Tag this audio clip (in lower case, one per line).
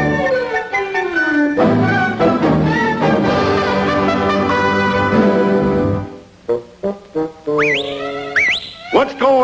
foghorn